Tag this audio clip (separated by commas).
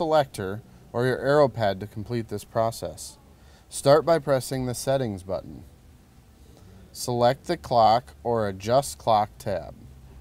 Speech